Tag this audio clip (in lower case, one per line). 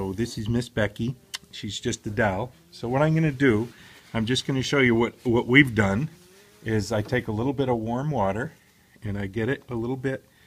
speech